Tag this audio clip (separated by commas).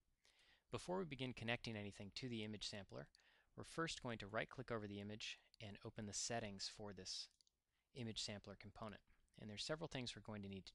Speech